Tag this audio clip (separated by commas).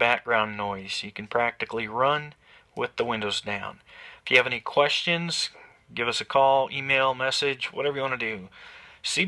Speech